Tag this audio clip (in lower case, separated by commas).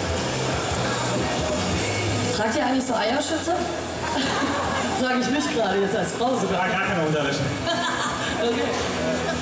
music, speech, inside a large room or hall